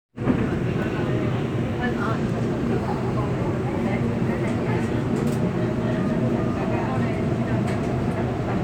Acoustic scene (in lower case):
subway train